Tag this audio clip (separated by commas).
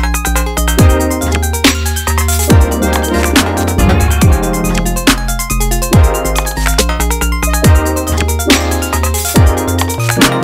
playing synthesizer